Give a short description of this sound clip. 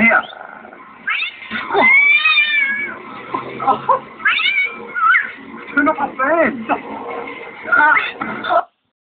A cat meows in a distressful way and a man speaks